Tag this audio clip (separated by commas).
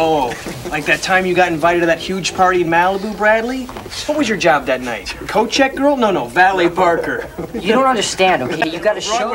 Speech